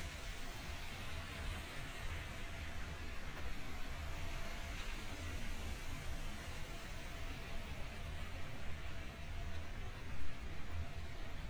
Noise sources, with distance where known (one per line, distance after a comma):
background noise